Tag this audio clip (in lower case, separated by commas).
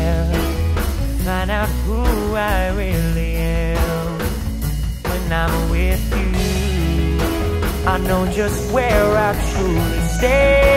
music, independent music